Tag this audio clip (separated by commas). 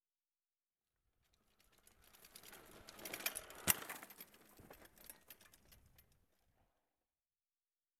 Bicycle, Vehicle